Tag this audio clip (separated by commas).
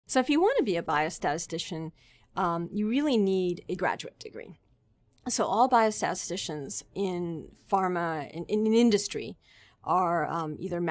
Speech, inside a small room